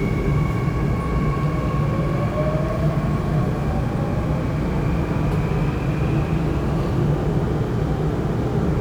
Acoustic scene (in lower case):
subway train